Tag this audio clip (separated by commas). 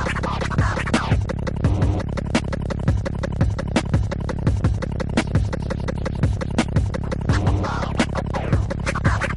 Scratching (performance technique), Music